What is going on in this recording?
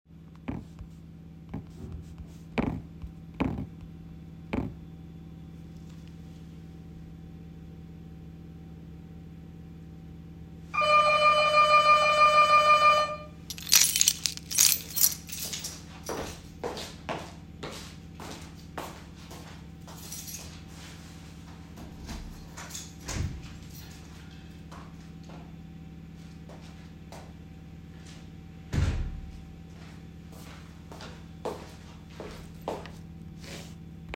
The doorbell rang. I picked up my keys and jingled them while walking to the front door. I opened the front door and then closed it again, followed by footsteps walking away.